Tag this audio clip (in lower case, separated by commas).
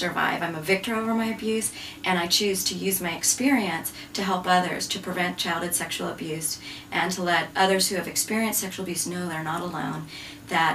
speech